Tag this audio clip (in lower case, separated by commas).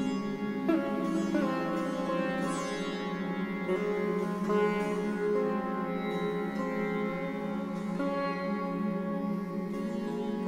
music, theremin, sitar